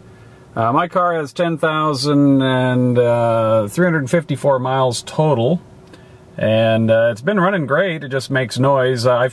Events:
[0.00, 9.32] car
[0.52, 5.58] male speech
[5.85, 6.24] breathing
[6.37, 9.30] male speech

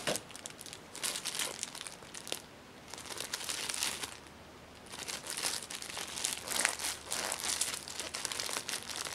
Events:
[0.00, 9.14] background noise
[0.03, 0.18] generic impact sounds
[0.25, 0.76] crumpling
[0.95, 1.95] crumpling
[2.08, 2.43] crumpling
[2.87, 4.24] crumpling
[4.78, 9.14] crumpling

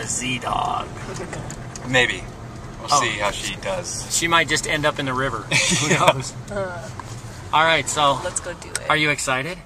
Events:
[0.00, 9.57] conversation
[0.01, 9.65] car
[0.03, 0.90] male speech
[0.35, 0.46] tick
[0.59, 0.68] tick
[1.10, 1.58] tick
[1.69, 1.78] tick
[1.85, 2.17] male speech
[2.50, 2.68] tick
[2.86, 5.46] male speech
[5.43, 6.35] laughter
[6.44, 6.52] tick
[6.48, 6.85] human voice
[7.50, 8.17] male speech
[8.22, 8.91] woman speaking
[8.69, 8.83] tick
[8.89, 9.59] male speech

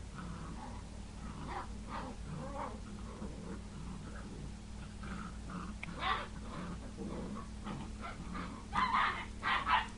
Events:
[0.00, 9.95] background noise
[0.12, 9.28] yip
[9.41, 9.92] yip

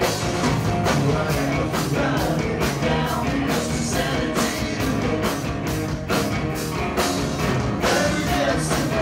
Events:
[0.00, 9.01] music
[1.08, 5.00] male singing
[1.09, 4.97] female singing
[7.79, 9.01] male singing
[7.83, 9.01] female singing

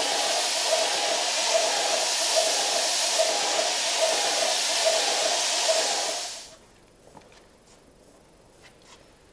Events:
[0.00, 6.42] spray
[6.39, 9.32] mechanisms
[6.63, 6.86] generic impact sounds
[7.04, 7.35] generic impact sounds
[7.60, 7.80] surface contact
[8.54, 8.66] surface contact
[8.74, 8.84] tick
[8.77, 8.91] surface contact

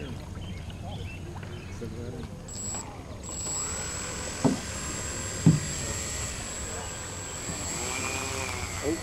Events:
[0.00, 0.13] chirp
[0.00, 0.14] man speaking
[0.00, 1.38] stream
[0.00, 9.02] conversation
[0.00, 9.02] mechanisms
[0.38, 1.21] chirp
[0.81, 0.92] human voice
[1.40, 1.77] chirp
[1.77, 2.20] man speaking
[2.16, 2.24] generic impact sounds
[2.69, 2.76] generic impact sounds
[4.42, 4.53] thunk
[5.45, 5.59] thunk

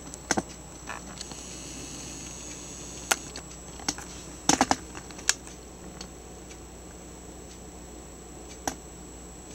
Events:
[0.00, 9.54] mechanisms
[0.03, 0.17] tick
[0.22, 0.56] generic impact sounds
[0.83, 1.34] generic impact sounds
[2.18, 2.31] generic impact sounds
[2.43, 2.52] generic impact sounds
[3.08, 3.54] generic impact sounds
[3.74, 4.05] generic impact sounds
[4.39, 4.75] generic impact sounds
[4.91, 5.31] generic impact sounds
[5.42, 5.55] generic impact sounds
[5.89, 6.07] generic impact sounds
[6.44, 6.58] tick
[7.37, 7.59] tick
[8.42, 8.59] tick
[8.58, 8.75] generic impact sounds
[9.43, 9.54] tick

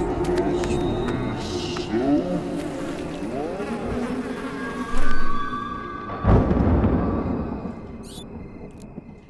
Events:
[0.00, 9.25] music
[0.01, 0.55] animal
[0.18, 0.41] walk
[0.55, 0.74] walk
[0.95, 1.15] walk
[1.01, 2.50] animal
[1.69, 1.90] walk
[2.50, 2.66] walk
[2.73, 3.20] animal
[2.94, 3.04] walk
[3.51, 5.28] buzz
[3.56, 4.21] animal
[4.79, 5.21] animal
[4.90, 5.20] generic impact sounds
[6.08, 9.25] thunder
[7.26, 7.81] cricket
[7.83, 7.97] generic impact sounds
[8.05, 8.23] patter
[8.30, 8.75] cricket
[8.92, 9.15] generic impact sounds
[9.00, 9.25] cricket

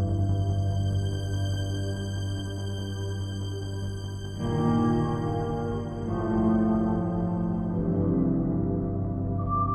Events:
[0.00, 9.74] music

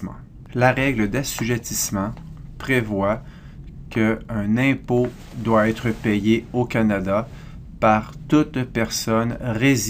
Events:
[0.01, 9.85] noise
[0.47, 2.14] male speech
[2.55, 3.13] male speech
[3.90, 7.24] male speech
[7.85, 8.06] male speech
[8.26, 9.85] male speech

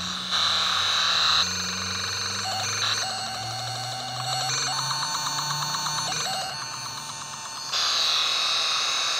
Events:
[0.00, 7.26] motor vehicle (road)
[0.00, 9.15] sound effect

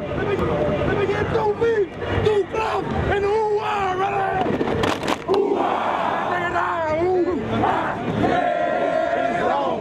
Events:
[0.00, 0.73] male speech
[0.00, 9.80] crowd
[0.00, 9.80] mechanisms
[0.26, 0.42] generic impact sounds
[0.87, 1.80] male speech
[1.86, 2.00] generic impact sounds
[2.12, 2.85] male speech
[2.70, 2.89] generic impact sounds
[3.04, 4.44] male speech
[4.33, 5.40] generic impact sounds
[5.24, 6.49] battle cry
[6.08, 7.36] male speech
[7.44, 8.00] battle cry
[8.13, 9.80] battle cry
[9.19, 9.80] male speech

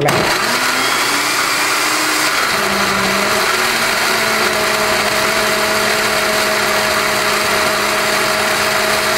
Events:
[0.00, 0.15] male speech
[0.00, 9.15] blender

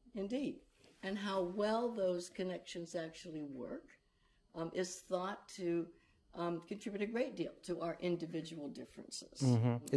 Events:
[0.12, 9.95] conversation
[0.13, 0.52] woman speaking
[0.63, 0.99] surface contact
[0.97, 3.97] woman speaking
[4.47, 5.86] woman speaking
[6.30, 9.58] woman speaking
[9.38, 9.95] man speaking

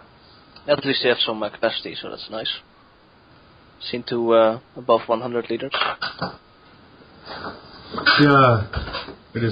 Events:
[0.00, 9.51] mechanisms
[0.48, 0.59] tick
[0.64, 2.58] male speech
[0.64, 9.51] conversation
[1.50, 1.59] tick
[3.29, 3.39] tick
[3.77, 4.60] male speech
[4.73, 5.69] male speech
[5.38, 6.37] generic impact sounds
[7.21, 9.24] generic impact sounds
[8.02, 8.69] male speech

